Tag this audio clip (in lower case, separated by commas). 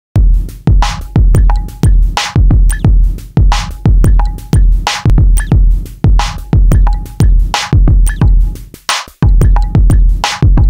drum machine, sampler